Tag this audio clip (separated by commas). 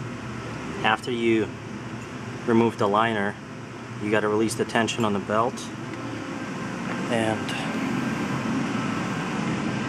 Speech